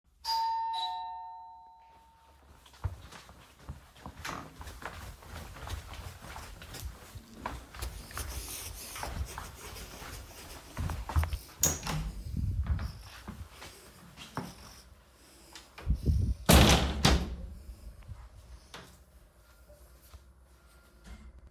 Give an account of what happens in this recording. doorbell ringing, walking down the stairs, opening and closing doors